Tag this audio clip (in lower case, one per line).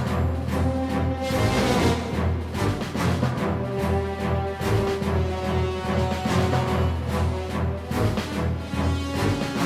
music